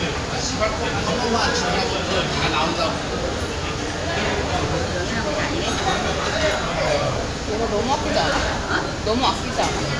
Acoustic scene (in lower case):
crowded indoor space